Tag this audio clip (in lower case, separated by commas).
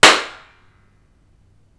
clapping, hands